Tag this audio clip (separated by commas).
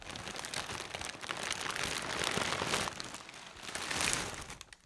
Crumpling